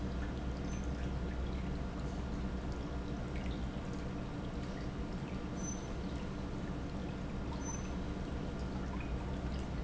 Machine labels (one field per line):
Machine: pump